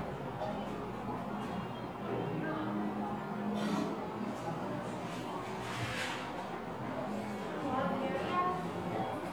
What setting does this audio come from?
cafe